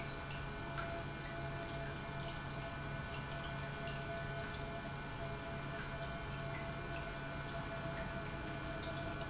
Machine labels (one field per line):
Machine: pump